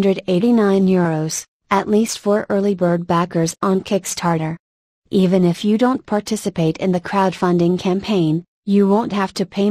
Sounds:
Speech

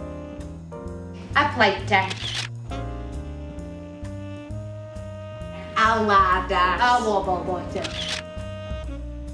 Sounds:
Music, Speech

